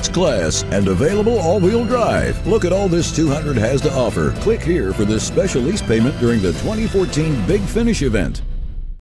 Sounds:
speech, music

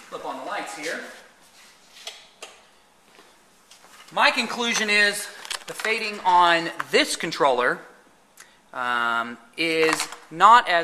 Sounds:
inside a large room or hall, speech

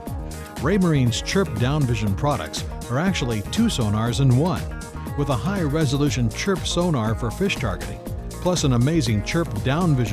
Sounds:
speech, music

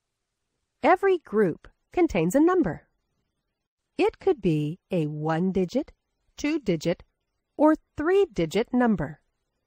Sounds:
speech

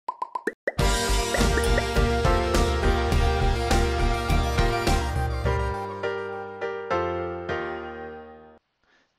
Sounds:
music, speech, plop

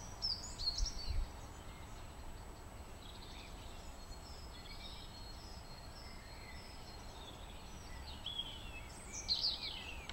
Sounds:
pheasant crowing

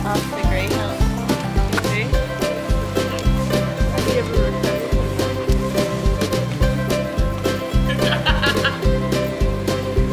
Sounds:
music, speech

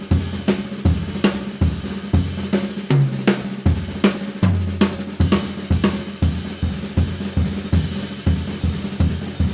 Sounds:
music

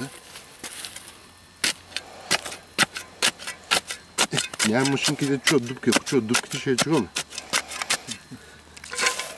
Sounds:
speech

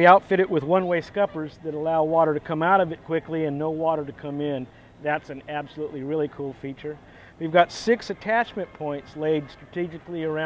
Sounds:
speech

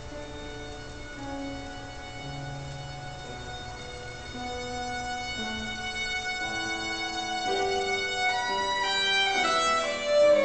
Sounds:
violin, musical instrument, music

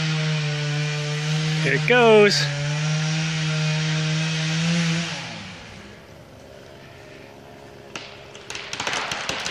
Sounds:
chainsaw, tools, speech, power tool

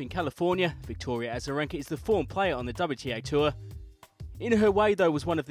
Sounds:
music, speech

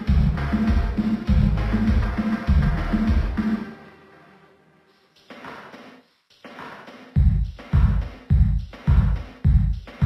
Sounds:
music

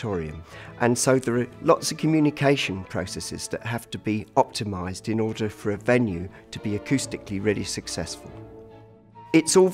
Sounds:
speech, music

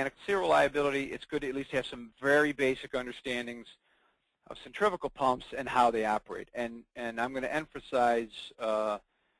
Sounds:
speech

